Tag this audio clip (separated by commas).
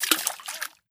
Splash, Liquid